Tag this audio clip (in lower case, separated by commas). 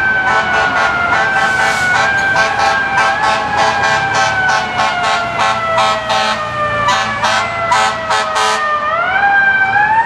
motor vehicle (road), emergency vehicle, siren, vehicle, fire engine